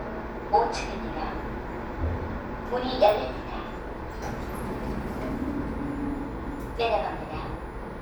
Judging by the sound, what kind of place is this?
elevator